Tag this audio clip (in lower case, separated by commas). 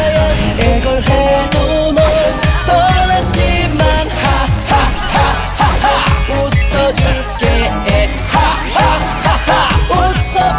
music of asia